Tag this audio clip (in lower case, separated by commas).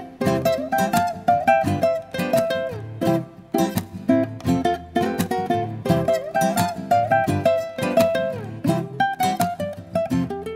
playing ukulele